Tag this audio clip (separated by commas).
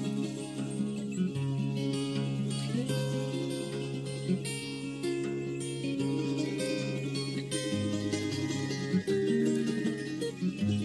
Music